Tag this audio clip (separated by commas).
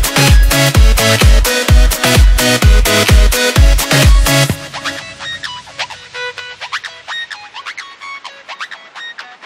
Music